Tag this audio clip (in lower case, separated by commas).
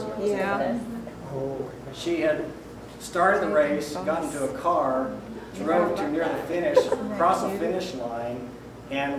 speech, woman speaking